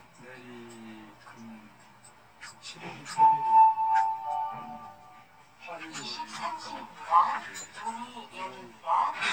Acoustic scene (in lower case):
elevator